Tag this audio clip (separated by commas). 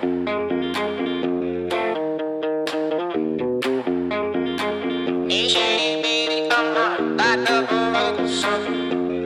Music